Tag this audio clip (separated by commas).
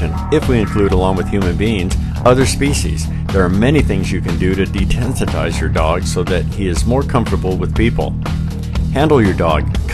Speech, Music